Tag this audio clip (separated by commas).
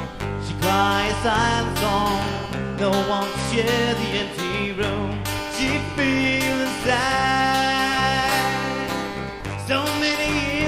Music